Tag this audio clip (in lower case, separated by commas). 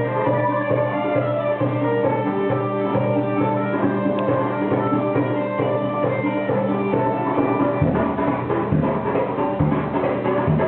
rhythm and blues, jazz, independent music, middle eastern music, music